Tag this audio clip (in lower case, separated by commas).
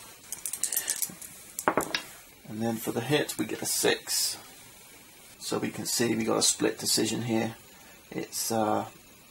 speech